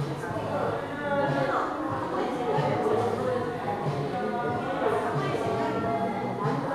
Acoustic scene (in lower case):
crowded indoor space